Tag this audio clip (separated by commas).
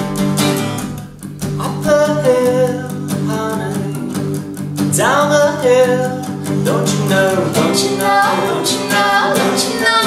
Male singing, Music